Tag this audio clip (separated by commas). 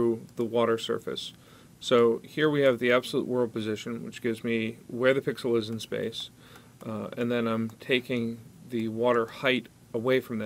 Speech